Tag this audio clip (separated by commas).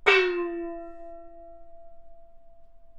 Music, Musical instrument, Gong, Percussion